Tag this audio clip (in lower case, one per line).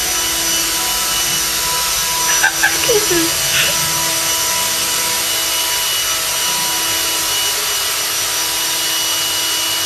vacuum cleaner